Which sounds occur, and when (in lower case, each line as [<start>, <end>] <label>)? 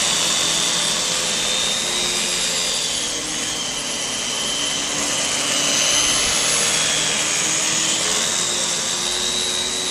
[0.00, 9.90] vacuum cleaner